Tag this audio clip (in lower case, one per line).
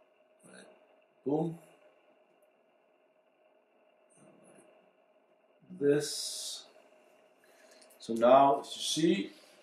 inside a small room
speech